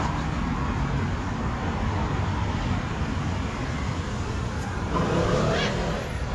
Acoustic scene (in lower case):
street